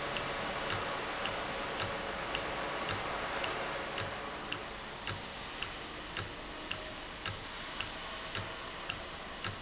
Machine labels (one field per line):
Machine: valve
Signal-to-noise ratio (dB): -6 dB